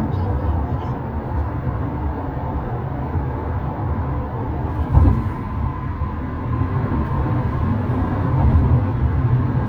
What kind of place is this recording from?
car